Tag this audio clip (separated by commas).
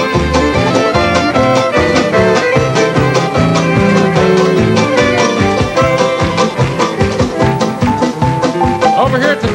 Speech, Music